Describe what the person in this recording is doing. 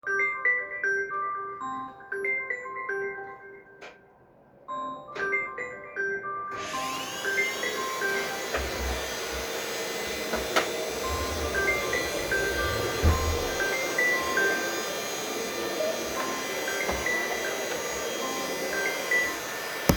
I was walking out from my living place while having a call and cleaning woker are using vaccum cleanner in hallway.